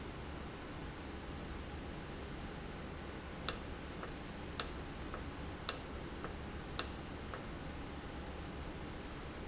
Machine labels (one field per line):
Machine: valve